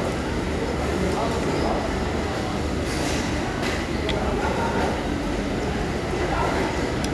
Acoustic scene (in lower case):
crowded indoor space